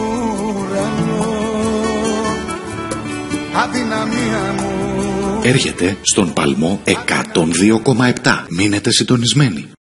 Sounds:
speech, music

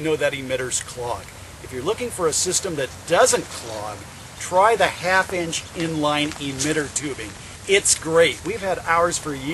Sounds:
speech

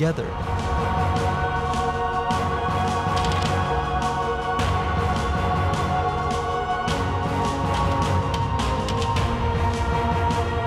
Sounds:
music, speech

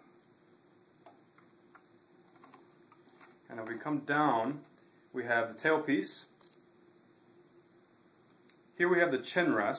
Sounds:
speech

